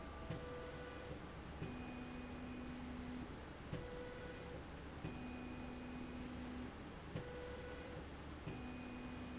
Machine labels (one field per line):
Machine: slide rail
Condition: normal